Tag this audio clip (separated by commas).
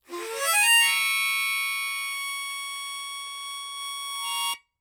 Music, Musical instrument, Harmonica